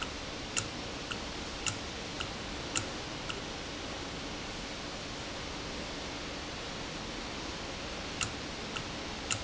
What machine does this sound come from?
valve